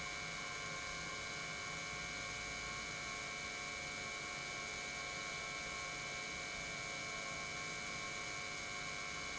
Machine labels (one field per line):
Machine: pump